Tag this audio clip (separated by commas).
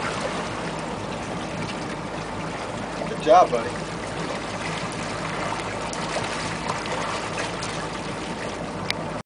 Speech, Water vehicle, Vehicle